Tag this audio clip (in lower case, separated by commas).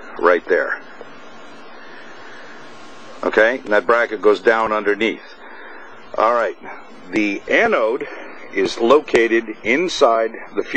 speech